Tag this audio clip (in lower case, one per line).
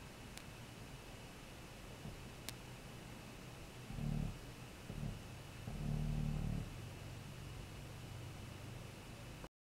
white noise